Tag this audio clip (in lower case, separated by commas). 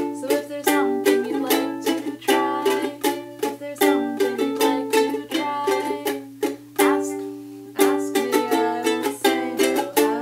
guitar, music, ukulele, inside a small room